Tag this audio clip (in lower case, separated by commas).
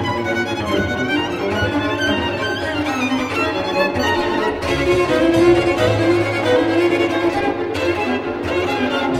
string section, orchestra